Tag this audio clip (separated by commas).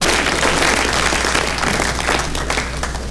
Applause, Human group actions